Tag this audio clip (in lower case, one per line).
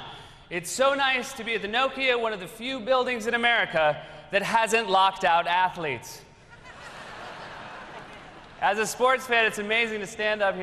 monologue
speech